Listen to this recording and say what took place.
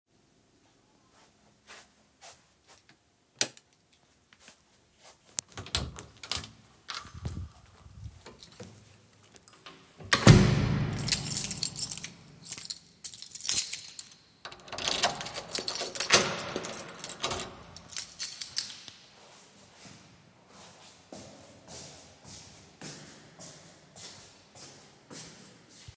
I walked out from my room to the entry hall, I switched the light off, I opened the apartment door and got out, I took my keychain and inserted the key in the lock and turned it, then I put my shoes on and walked away.